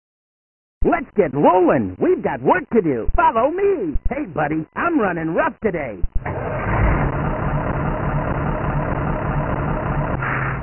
Frantic speech followed by engine starting